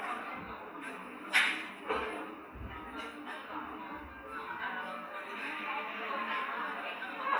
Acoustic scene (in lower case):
cafe